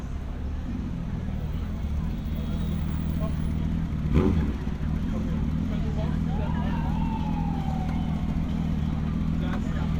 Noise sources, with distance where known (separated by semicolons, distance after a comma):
engine of unclear size, near; unidentified alert signal, far; unidentified human voice